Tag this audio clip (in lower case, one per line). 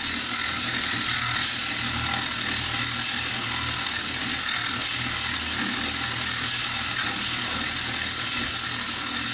tools
inside a small room